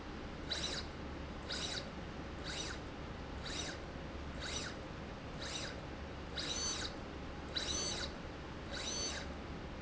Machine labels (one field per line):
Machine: slide rail